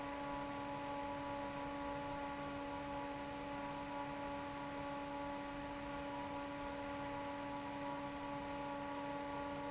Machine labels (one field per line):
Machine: fan